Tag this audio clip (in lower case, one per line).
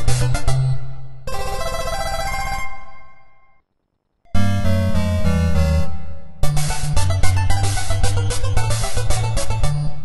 music